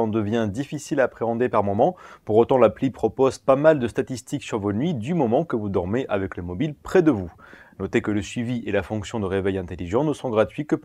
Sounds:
Speech

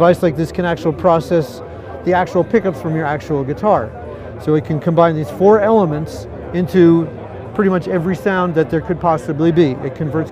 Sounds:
Speech

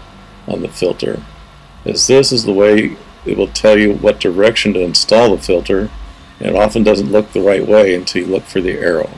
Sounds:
Speech

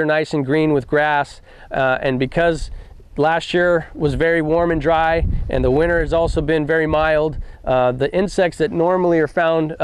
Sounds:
Speech

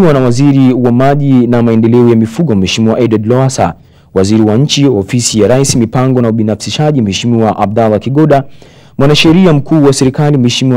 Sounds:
Speech

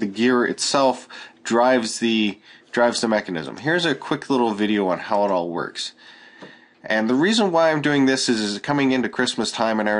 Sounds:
Speech

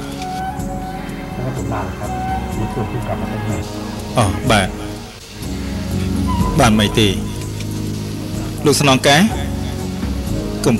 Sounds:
Speech, Music

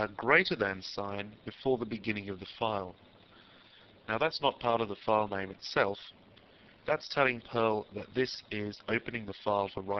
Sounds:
Speech

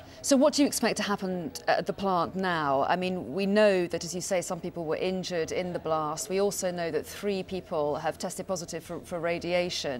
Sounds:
Speech

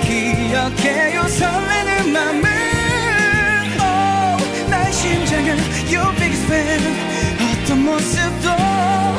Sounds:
Music

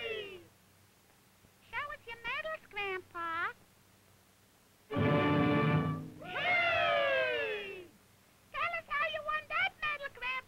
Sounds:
Speech, Music

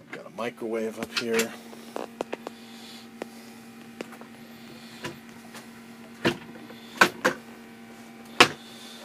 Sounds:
inside a small room, Speech

